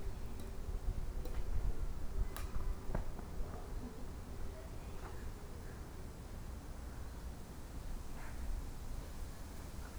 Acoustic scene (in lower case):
park